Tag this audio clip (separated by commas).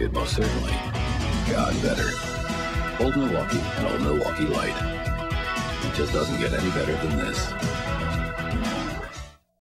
Music, Speech